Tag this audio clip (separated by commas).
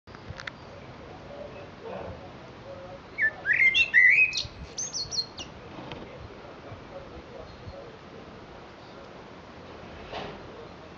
Speech